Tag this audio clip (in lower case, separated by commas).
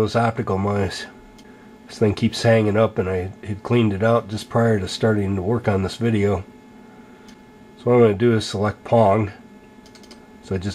speech, inside a small room